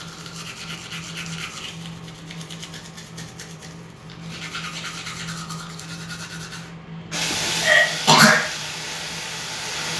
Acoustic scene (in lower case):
restroom